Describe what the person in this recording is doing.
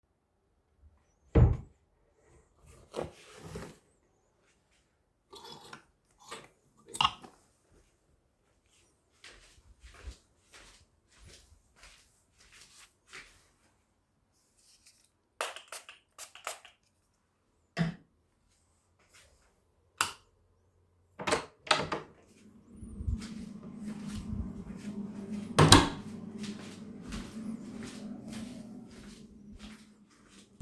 I opend the wardrobe and searched for my jacket and took it, then i walked to the desk, took my perfume and spray it four times. finally i turned the light off and open the bedroom door, walked through the hallway when the kitchen hood is on.